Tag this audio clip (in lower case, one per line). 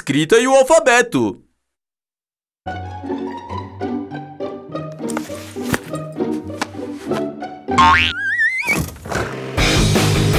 speech
music